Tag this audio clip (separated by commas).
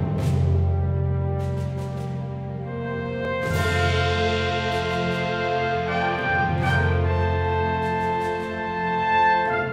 Music